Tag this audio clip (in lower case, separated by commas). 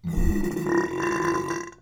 burping